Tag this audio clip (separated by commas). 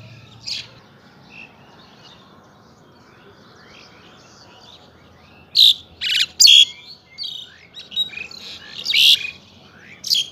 mynah bird singing